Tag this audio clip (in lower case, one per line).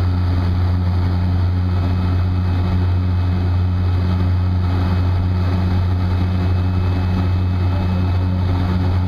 airscrew
outside, rural or natural
vehicle
aircraft